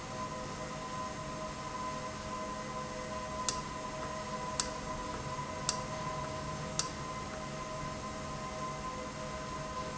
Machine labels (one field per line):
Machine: valve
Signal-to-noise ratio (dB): -6 dB